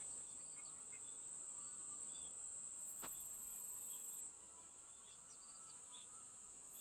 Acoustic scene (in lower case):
park